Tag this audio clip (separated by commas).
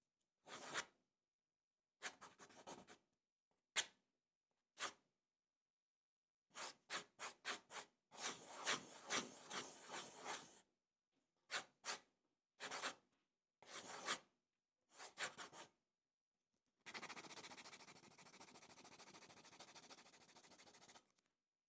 home sounds, Writing